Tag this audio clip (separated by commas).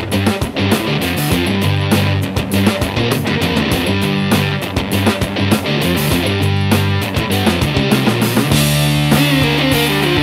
Music